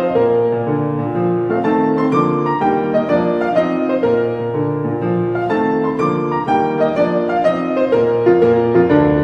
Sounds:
Music

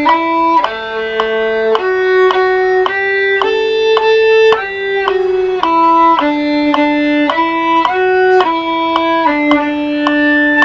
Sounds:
fiddle, Music, Musical instrument

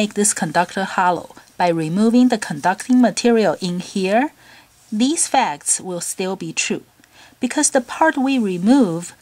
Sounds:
Speech

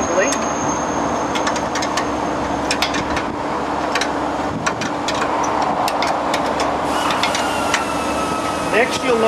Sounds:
Speech

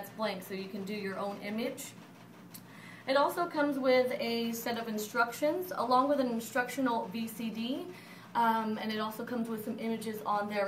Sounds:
Speech

